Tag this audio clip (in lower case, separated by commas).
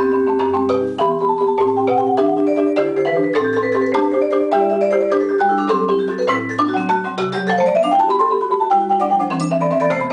xylophone, musical instrument, vibraphone, marimba, music